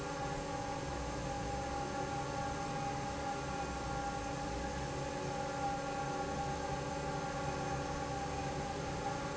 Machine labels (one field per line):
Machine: fan